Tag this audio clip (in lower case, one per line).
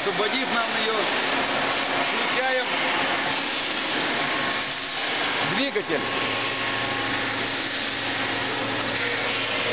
lathe spinning